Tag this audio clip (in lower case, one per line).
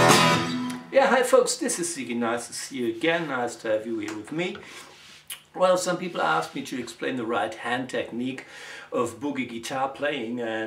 speech
music
plucked string instrument
acoustic guitar
guitar
strum
musical instrument